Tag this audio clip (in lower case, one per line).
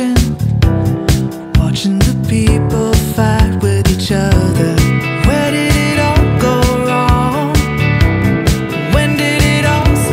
independent music